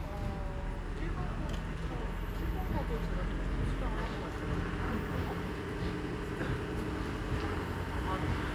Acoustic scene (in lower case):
residential area